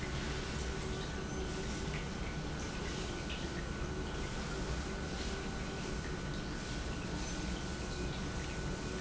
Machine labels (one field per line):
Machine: pump